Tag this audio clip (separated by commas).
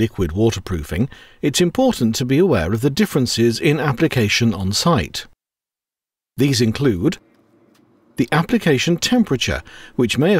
Speech